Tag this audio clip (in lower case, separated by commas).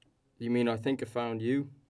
speech, human voice